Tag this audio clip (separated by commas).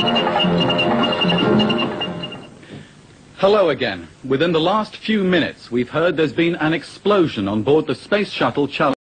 Music, Speech